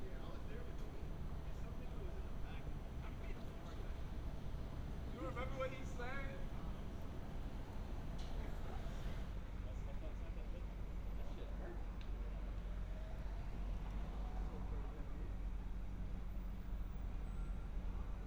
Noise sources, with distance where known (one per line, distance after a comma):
person or small group talking